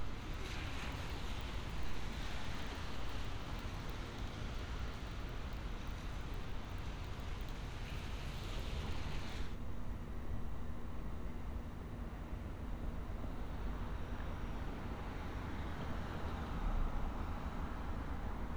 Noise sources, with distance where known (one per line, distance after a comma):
background noise